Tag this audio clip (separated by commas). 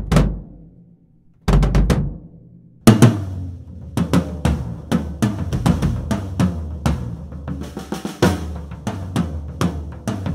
Drum kit, Drum, Bass drum, Music, Musical instrument